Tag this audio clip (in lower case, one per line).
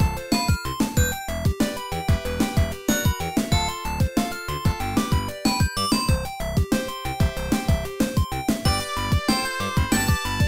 video game music
music